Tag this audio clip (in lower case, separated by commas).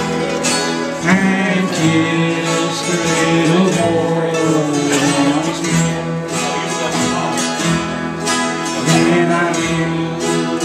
music, musical instrument, singing, guitar, bluegrass, bowed string instrument